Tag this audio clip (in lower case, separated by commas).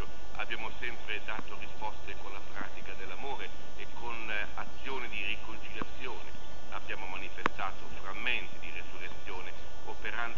speech